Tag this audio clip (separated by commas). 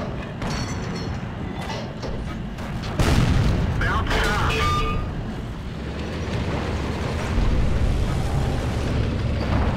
Speech